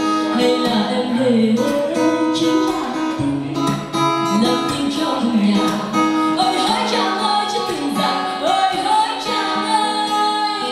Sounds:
plucked string instrument
music
guitar
musical instrument

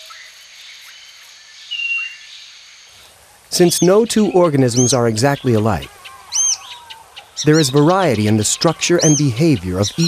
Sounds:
speech
chirp
bird vocalization

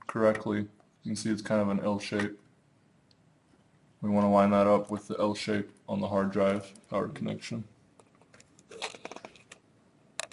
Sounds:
inside a small room
speech

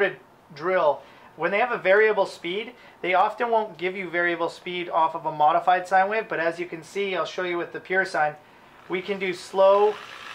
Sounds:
speech

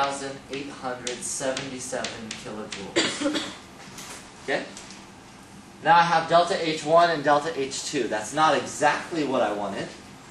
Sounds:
inside a small room
speech

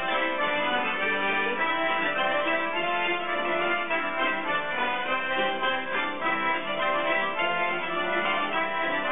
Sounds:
music
traditional music
folk music

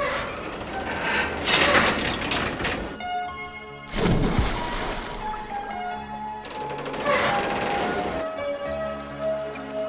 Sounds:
music

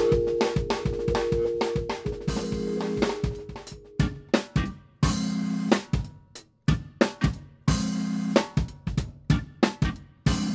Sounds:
music

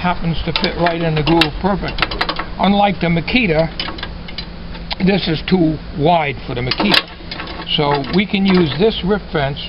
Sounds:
speech

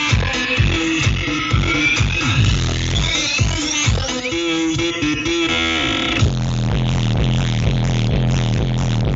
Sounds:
music

